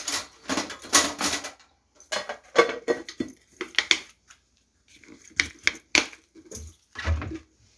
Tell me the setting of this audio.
kitchen